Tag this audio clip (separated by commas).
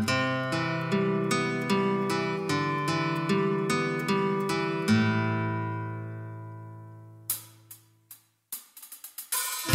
Music